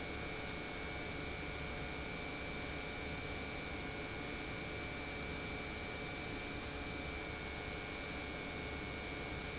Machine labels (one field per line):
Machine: pump